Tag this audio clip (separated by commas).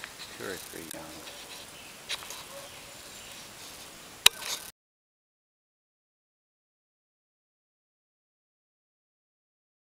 Speech